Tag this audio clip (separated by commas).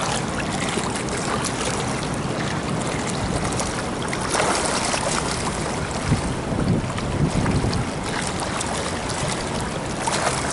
swimming